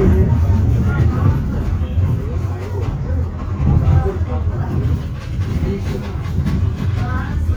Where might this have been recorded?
on a bus